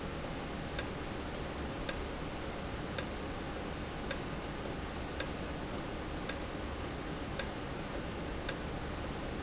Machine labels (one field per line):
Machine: valve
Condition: normal